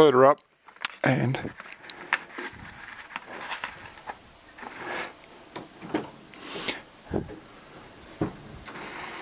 A man talks, followed by rustling of fabric